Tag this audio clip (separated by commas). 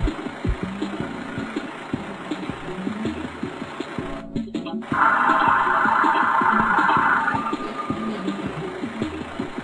Vehicle, Truck, Music